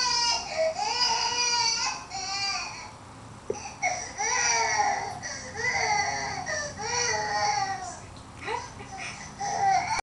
A baby is crying and whining